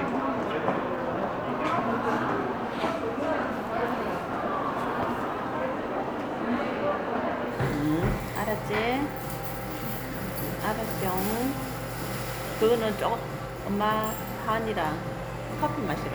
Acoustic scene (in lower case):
crowded indoor space